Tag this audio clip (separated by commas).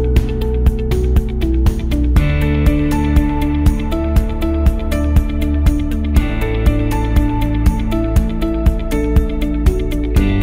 Music